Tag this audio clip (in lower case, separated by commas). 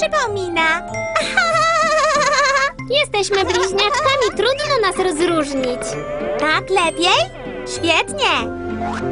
kid speaking, speech, music